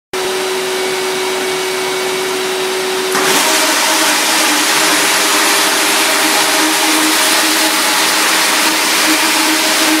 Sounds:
Vacuum cleaner

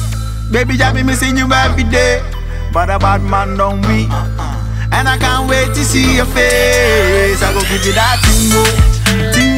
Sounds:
Afrobeat, Music

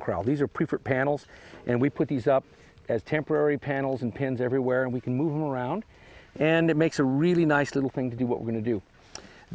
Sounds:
Clip-clop, Speech

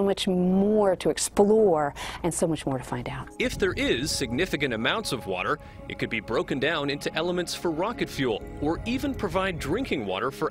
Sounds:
Music, Speech

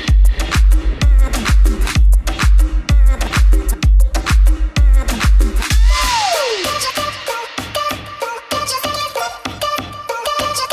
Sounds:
Music, Disco

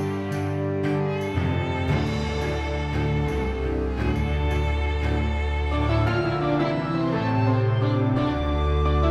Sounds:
Music

